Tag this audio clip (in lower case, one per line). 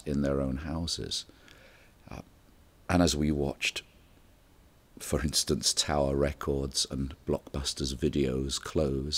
speech